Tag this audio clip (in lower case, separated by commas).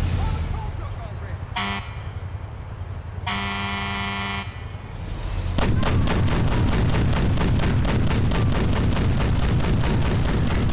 speech